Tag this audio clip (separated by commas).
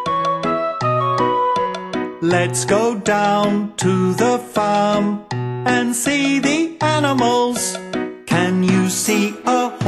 Music for children, Music